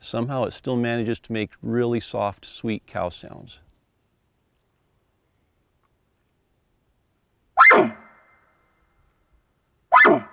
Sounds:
elk bugling

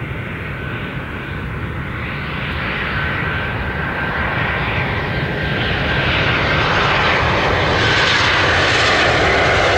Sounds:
outside, rural or natural, Aircraft engine, Vehicle, Aircraft

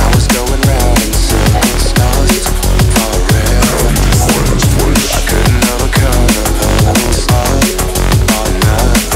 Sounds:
Drum and bass, Music, Song

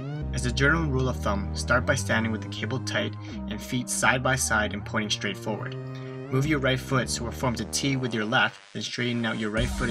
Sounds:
Speech, Music

